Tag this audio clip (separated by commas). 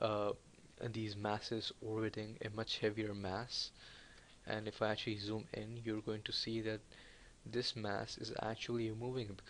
Speech